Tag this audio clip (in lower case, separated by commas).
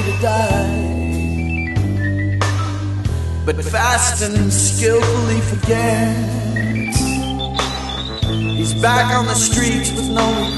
soul music, music